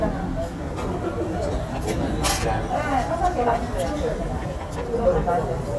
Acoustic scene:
restaurant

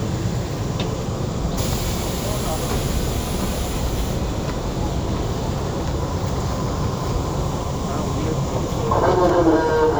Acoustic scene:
subway train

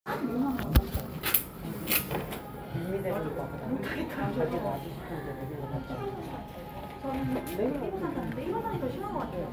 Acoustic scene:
cafe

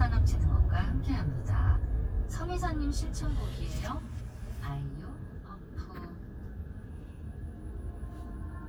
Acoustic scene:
car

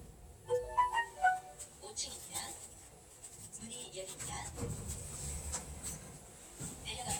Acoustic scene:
elevator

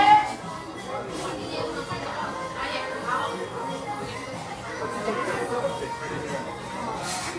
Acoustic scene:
restaurant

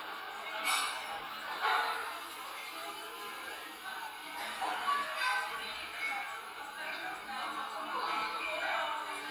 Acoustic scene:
crowded indoor space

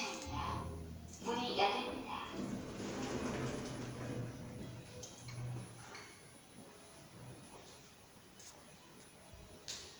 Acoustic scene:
elevator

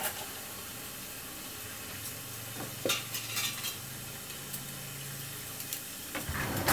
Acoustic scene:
kitchen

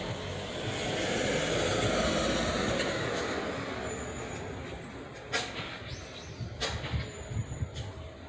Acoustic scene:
residential area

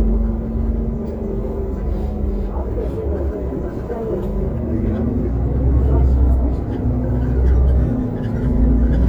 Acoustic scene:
bus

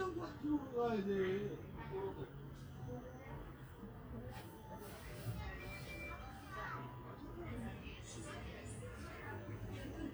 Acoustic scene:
park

